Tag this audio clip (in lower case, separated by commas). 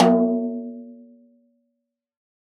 snare drum, drum, percussion, music, musical instrument